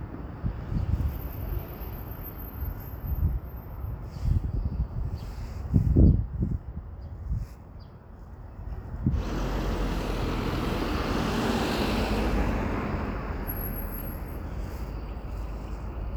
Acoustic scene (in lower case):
street